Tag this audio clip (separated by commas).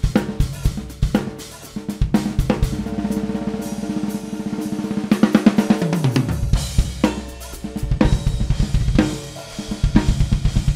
Hi-hat, Drum kit, Cymbal, Music, Musical instrument, Bass drum, Snare drum, Drum